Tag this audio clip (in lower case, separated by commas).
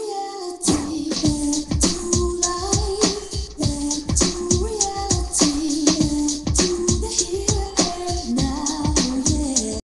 music